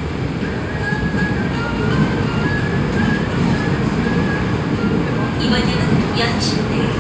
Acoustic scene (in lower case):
subway train